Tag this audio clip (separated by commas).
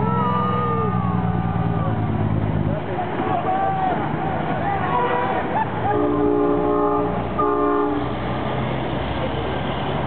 Vehicle, Speech, outside, urban or man-made, Truck